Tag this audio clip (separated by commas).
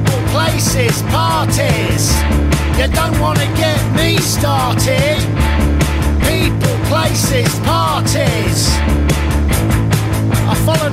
Music